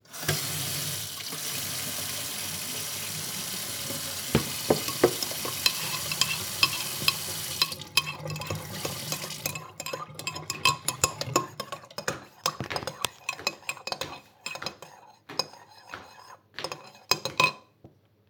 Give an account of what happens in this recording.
I walked around the kitchen while preparing something. Water was turned on at the sink. Cutlery sounds occurred while handling utensils.